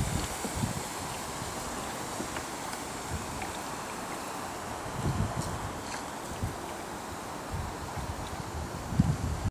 Water is lightly spraying